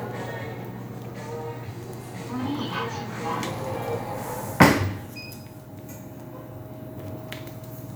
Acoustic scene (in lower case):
elevator